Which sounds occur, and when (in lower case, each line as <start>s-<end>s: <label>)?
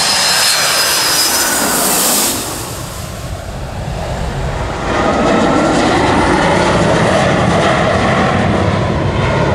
0.0s-9.5s: aircraft
0.0s-9.5s: wind